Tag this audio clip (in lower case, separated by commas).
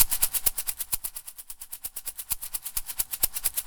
percussion, rattle (instrument), music, musical instrument